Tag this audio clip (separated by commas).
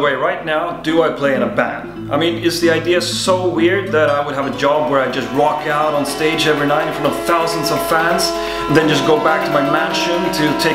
Plucked string instrument, Speech, Acoustic guitar, Guitar, Strum, Music, Musical instrument